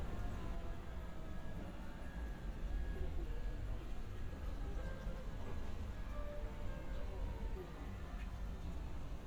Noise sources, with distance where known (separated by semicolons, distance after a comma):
music from an unclear source, far